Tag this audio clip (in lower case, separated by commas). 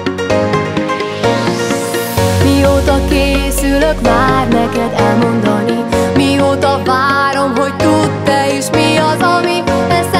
music